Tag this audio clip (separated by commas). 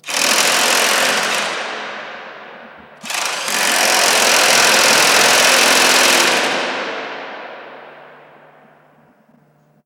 Mechanisms